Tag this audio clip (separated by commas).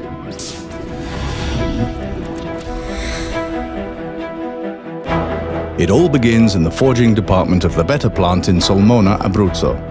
Music, Speech